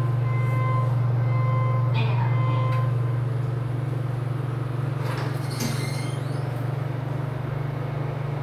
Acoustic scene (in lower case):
elevator